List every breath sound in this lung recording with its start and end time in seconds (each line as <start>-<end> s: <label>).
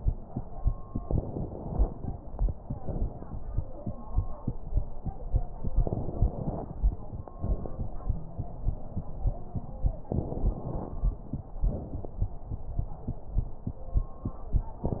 1.00-1.96 s: inhalation
2.75-3.24 s: exhalation
5.81-6.74 s: inhalation
7.39-7.94 s: exhalation
8.16-8.77 s: wheeze
10.10-11.05 s: inhalation
11.58-12.38 s: exhalation